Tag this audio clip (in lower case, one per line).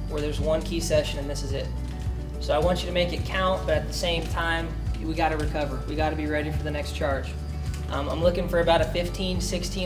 music
male speech
speech